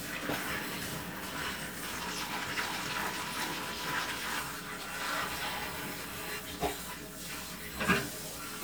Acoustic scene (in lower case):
kitchen